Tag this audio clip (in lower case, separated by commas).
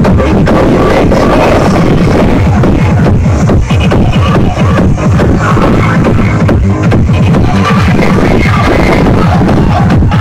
music